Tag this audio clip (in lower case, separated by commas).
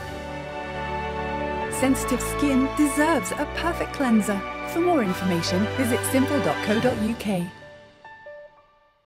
music, speech